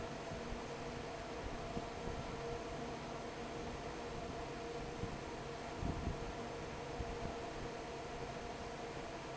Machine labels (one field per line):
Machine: fan